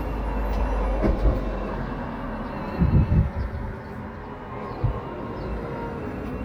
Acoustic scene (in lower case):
street